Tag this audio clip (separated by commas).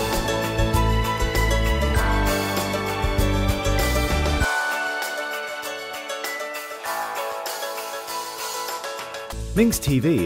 Speech, Sound effect, Music